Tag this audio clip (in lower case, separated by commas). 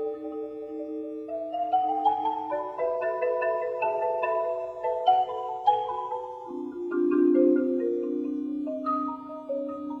music, xylophone, musical instrument, percussion